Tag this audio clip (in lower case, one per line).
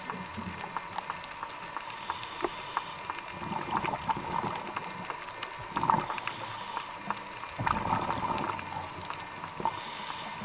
gurgling